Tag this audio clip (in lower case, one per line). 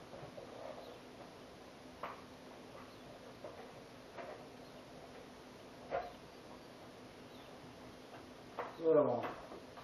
speech